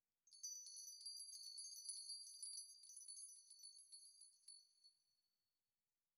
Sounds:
Bell

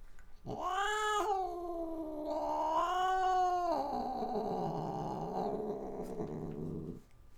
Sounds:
Domestic animals, Growling, Cat, Animal

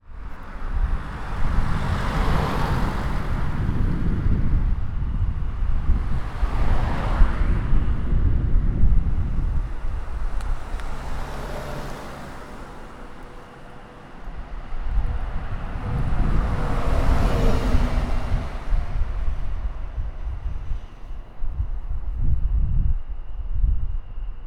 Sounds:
Motor vehicle (road), Traffic noise, Bus, Vehicle

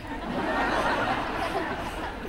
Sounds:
Human group actions, Laughter, Human voice, Crowd

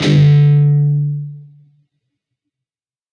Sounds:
Guitar, Music, Musical instrument, Plucked string instrument

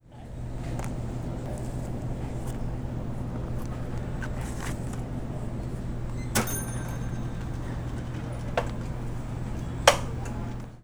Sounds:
Mechanisms

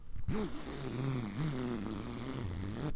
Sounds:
Domestic sounds, Zipper (clothing)

